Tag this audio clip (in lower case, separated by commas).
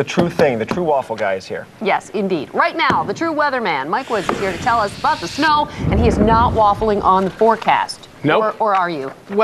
speech